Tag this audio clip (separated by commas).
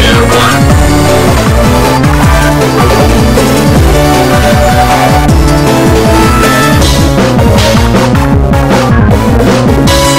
Techno, Electronic music, Music